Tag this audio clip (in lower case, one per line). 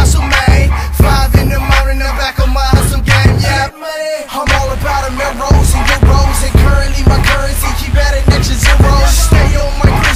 music